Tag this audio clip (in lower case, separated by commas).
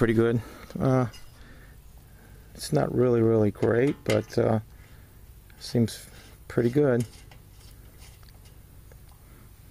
outside, rural or natural, speech